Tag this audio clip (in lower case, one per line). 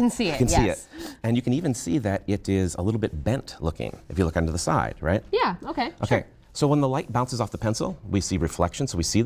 speech